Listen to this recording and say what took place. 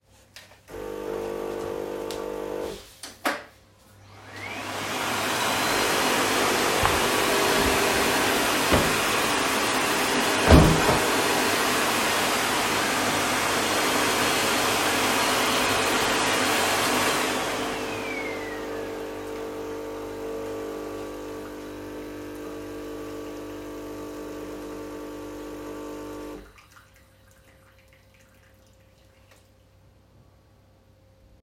The phone is placed on a table in the kitchen. A coffee machine is running while a vacuum cleaner is used nearby. At the same time a window is opened, creating overlapping sound events from three different classes.